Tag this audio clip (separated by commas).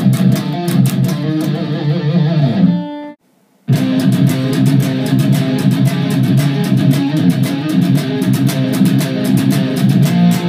Musical instrument, Plucked string instrument, Music, Guitar, Electric guitar